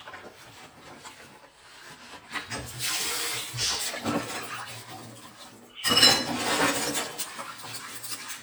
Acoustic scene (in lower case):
kitchen